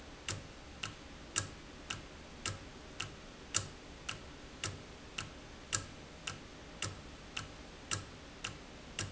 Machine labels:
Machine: valve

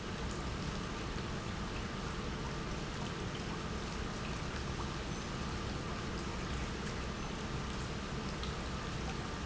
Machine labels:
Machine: pump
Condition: normal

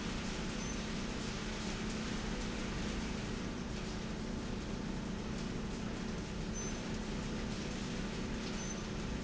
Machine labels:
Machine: slide rail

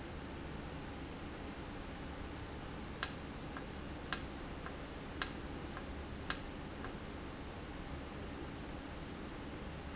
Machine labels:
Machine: valve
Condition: normal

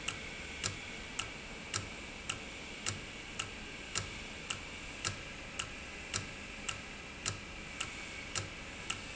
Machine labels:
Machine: valve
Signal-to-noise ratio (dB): 0 dB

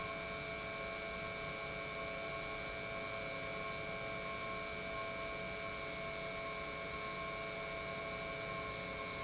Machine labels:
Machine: pump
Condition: normal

